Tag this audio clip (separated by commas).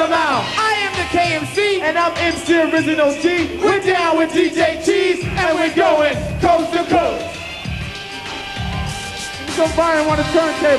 Music, Speech